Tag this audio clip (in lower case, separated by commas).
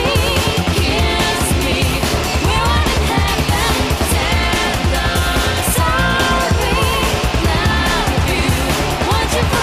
music